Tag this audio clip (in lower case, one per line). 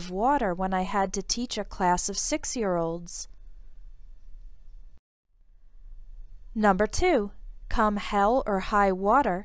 speech